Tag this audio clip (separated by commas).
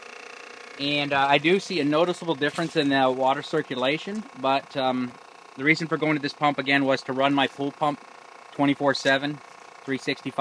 Speech